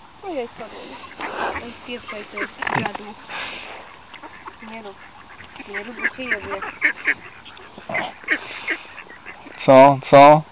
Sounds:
fowl, honk, goose

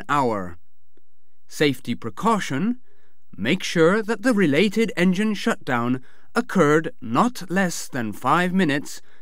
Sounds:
speech

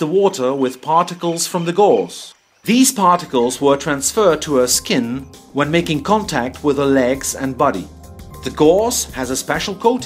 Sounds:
music, speech

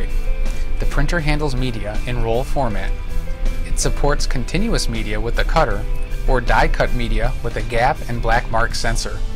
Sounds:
speech, music

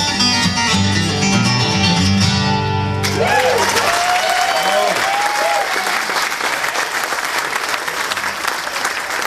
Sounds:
speech, people clapping, guitar, country, applause, music, acoustic guitar, plucked string instrument

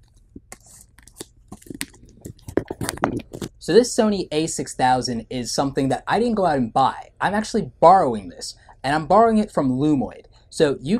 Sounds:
speech, inside a small room

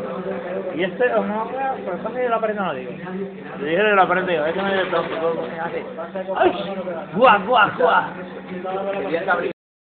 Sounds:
speech

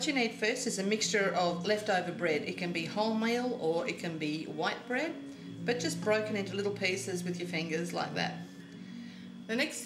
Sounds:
speech

